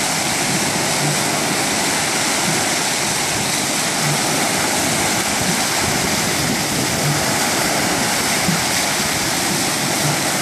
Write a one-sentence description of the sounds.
Loud continuous water movement